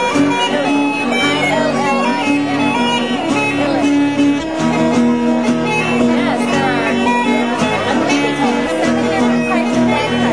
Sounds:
Musical instrument, Music, Guitar, Speech, Plucked string instrument

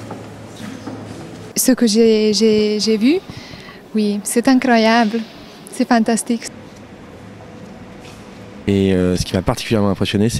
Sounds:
Speech

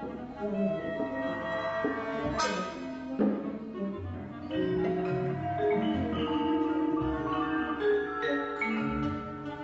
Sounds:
Bowed string instrument, Music, Orchestra, Classical music, Musical instrument, Piano, Percussion

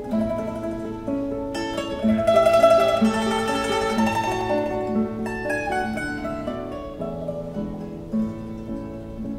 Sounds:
Guitar, Musical instrument, Music, Mandolin

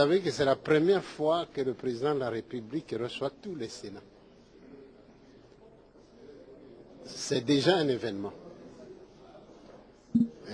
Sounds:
Speech

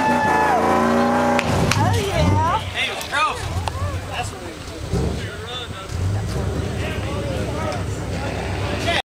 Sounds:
Speech

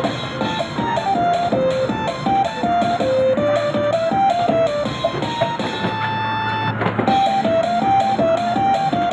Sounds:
Music

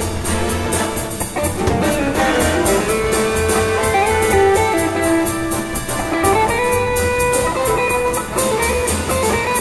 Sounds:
Orchestra, Musical instrument, Guitar, Music

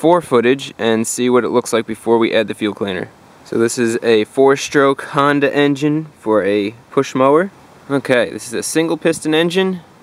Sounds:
Speech

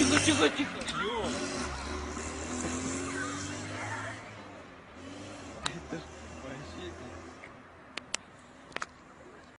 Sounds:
Speech, Car, Car passing by, Motor vehicle (road), Vehicle

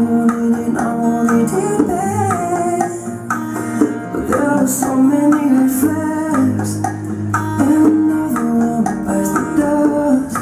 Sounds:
Music, Dance music

